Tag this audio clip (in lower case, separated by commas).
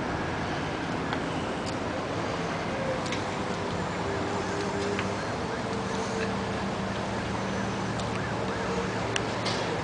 vehicle